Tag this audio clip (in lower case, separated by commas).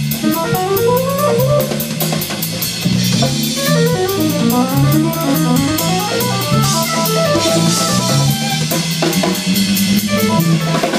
drum, drum kit, music, rimshot, percussion, jazz, musical instrument